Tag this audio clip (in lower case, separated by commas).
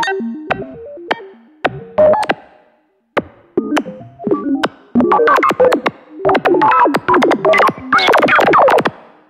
music, synthesizer